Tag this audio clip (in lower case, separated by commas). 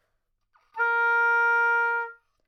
woodwind instrument, musical instrument, music